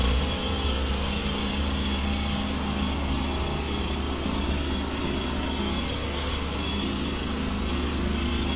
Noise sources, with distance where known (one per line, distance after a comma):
jackhammer